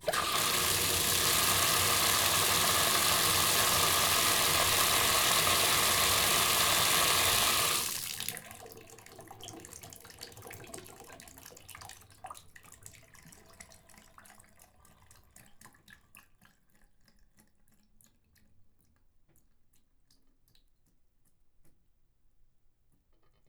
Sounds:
domestic sounds, bathtub (filling or washing), water tap

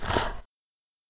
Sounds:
dog, animal, domestic animals

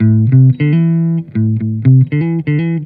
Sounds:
plucked string instrument, electric guitar, musical instrument, music, guitar

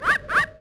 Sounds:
wild animals, bird, animal

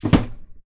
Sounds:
home sounds, drawer open or close

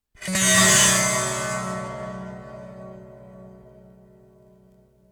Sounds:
plucked string instrument, musical instrument, music

